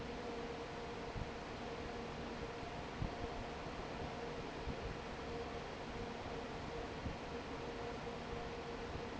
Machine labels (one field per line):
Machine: fan